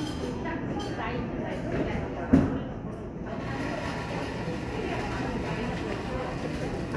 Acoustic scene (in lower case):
cafe